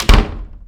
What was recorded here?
wooden door closing